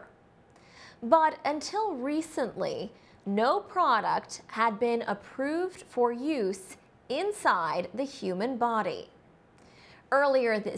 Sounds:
Speech

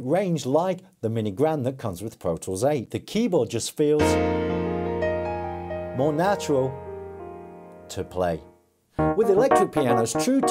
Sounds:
Speech, Music

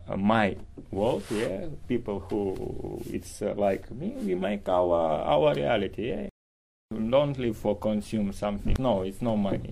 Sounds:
Speech

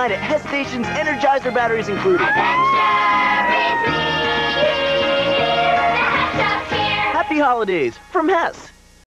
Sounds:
Music, Speech

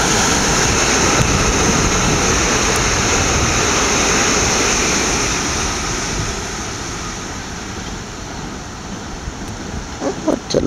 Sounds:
Rail transport, Train, Vehicle, Subway

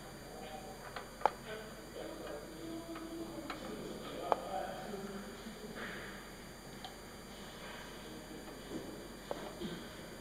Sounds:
Speech

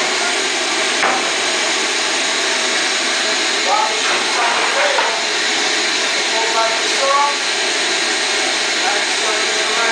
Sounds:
Wood

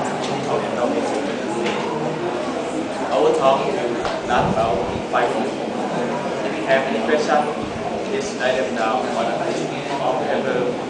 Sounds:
Speech

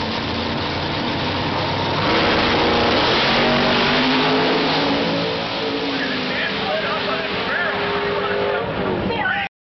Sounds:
Car, Speech, Vehicle

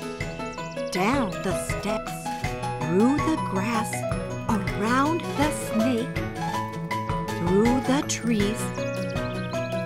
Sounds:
Music, Speech

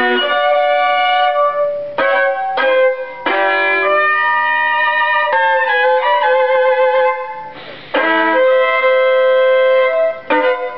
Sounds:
Music, Violin, Musical instrument, Bowed string instrument

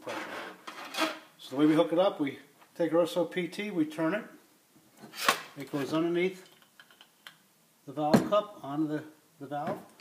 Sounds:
Speech

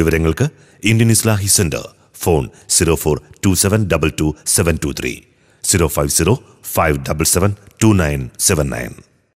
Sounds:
Narration, man speaking, Speech

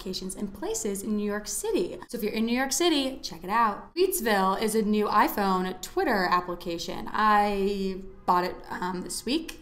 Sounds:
Speech

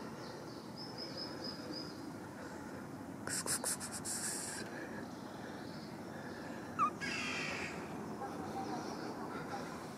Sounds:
cat hissing

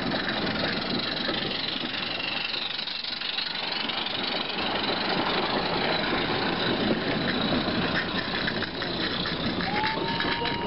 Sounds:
Rail transport, Rattle, Railroad car, Train

